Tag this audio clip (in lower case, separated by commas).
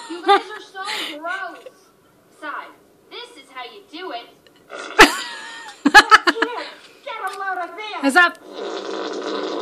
fart, speech